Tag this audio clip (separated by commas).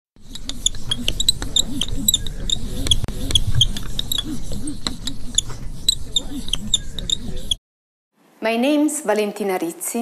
Speech